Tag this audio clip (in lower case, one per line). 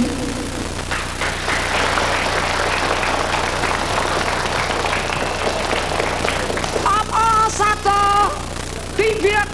speech